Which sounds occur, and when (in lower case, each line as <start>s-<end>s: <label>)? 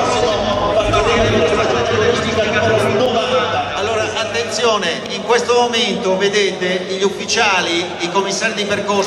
0.0s-3.8s: speech babble
0.0s-7.9s: man speaking
0.0s-9.0s: background noise
5.0s-5.1s: tick
8.0s-9.0s: man speaking